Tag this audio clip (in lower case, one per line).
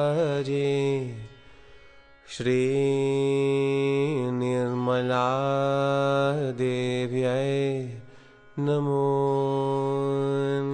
mantra